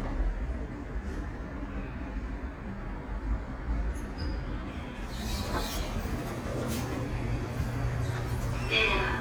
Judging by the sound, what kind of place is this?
elevator